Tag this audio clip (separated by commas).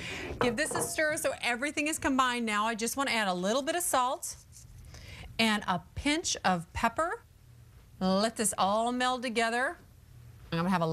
Speech